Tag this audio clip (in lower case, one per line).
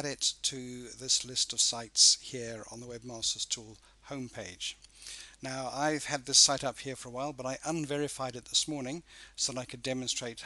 speech